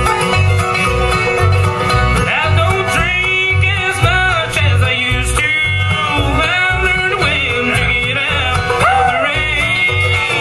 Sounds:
music, male singing

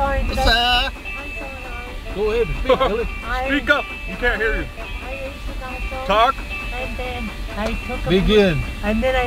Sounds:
music, speech, vehicle

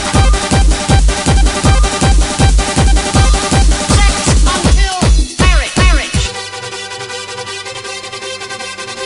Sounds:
electronica, music

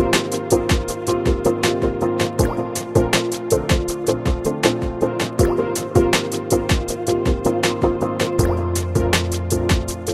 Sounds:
music

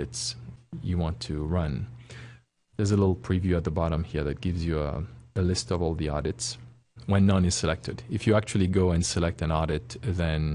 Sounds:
speech

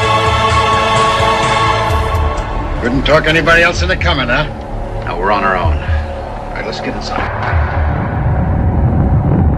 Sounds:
speech, inside a large room or hall, music

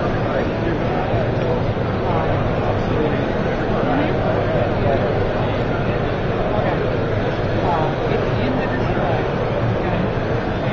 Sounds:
speech

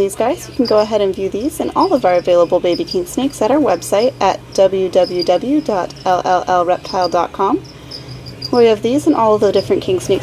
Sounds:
speech, animal

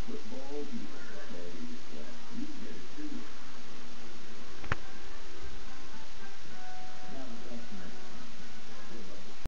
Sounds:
music, speech

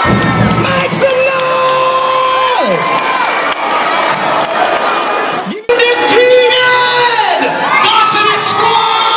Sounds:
crowd, cheering

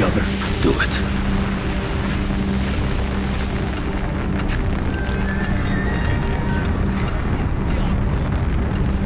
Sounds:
speech, outside, urban or man-made, music

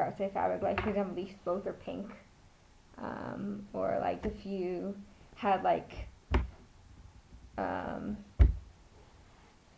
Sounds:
speech, inside a small room

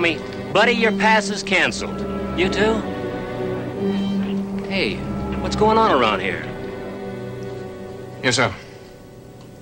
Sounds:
speech, music

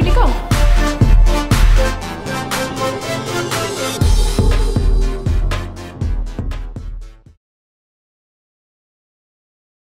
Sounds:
sound effect, roll, speech, music

